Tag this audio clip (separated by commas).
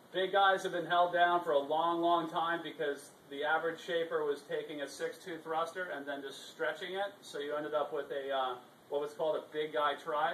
Speech